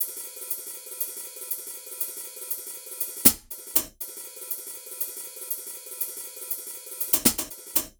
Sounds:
Cymbal, Music, Percussion, Hi-hat, Musical instrument

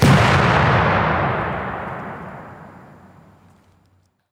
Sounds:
Explosion

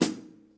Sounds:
Musical instrument, Music, Percussion, Drum, Snare drum

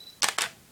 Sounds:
Mechanisms, Camera

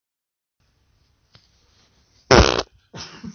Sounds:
Fart

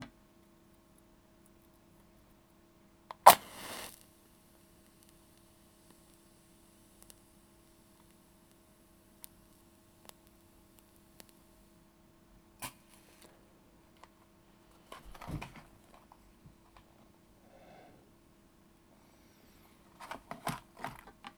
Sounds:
Fire

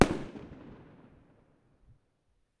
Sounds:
Fireworks, Explosion

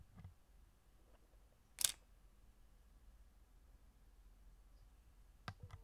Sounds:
Camera, Mechanisms

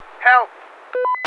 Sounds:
Human voice, Male speech, Speech

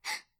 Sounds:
Respiratory sounds, Breathing, Gasp

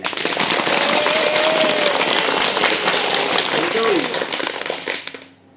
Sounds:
Cheering, Crowd, Human group actions, Applause

